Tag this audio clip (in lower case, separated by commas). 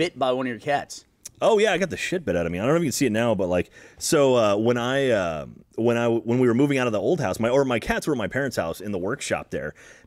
speech